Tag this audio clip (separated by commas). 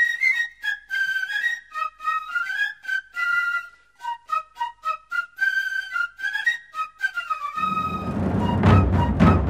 Music